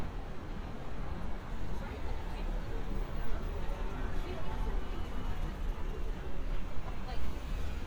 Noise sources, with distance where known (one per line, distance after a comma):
person or small group talking